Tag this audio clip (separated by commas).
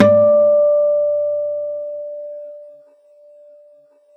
Plucked string instrument, Acoustic guitar, Musical instrument, Guitar, Music